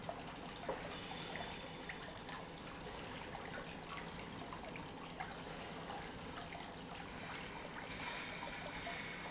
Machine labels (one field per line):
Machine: pump